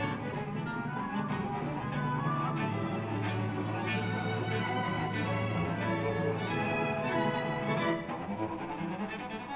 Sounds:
Bowed string instrument, Violin

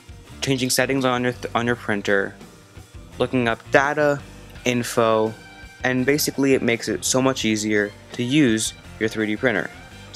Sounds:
Speech, Music

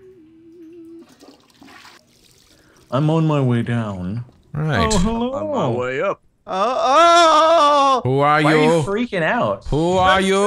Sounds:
inside a small room, Speech

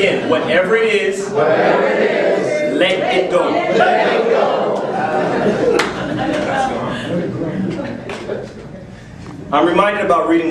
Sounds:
Narration, Speech, Male speech

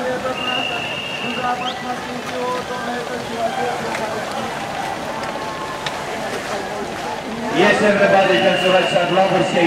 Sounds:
Sailboat, Speech

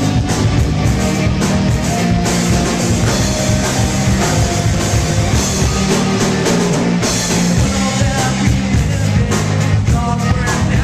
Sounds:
Progressive rock, Punk rock, Heavy metal, Rock and roll, Music

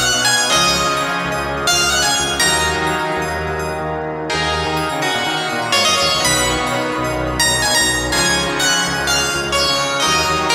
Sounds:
Music

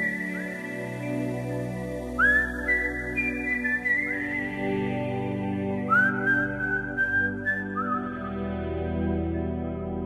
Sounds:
Music

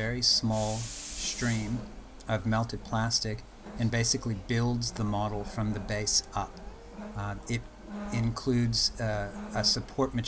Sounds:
Speech, Printer

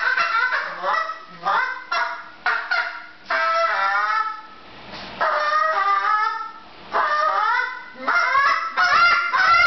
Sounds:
Goose, Fowl, Honk

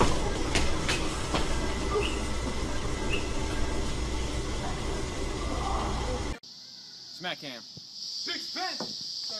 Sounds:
Speech

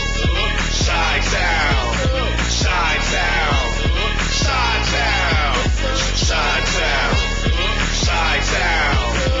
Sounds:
Music

